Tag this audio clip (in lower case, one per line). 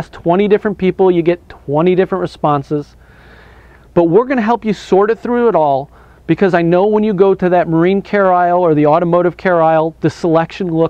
speech